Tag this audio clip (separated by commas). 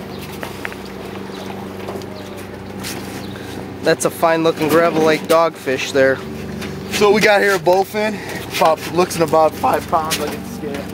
outside, rural or natural, Speech